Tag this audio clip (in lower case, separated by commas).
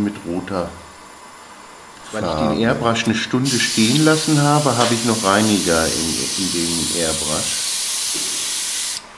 speech